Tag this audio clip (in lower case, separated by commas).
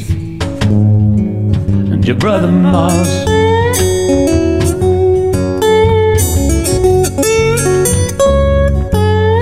guitar, music